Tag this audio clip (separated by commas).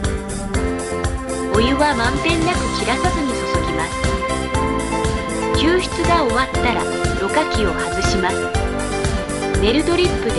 Speech, Music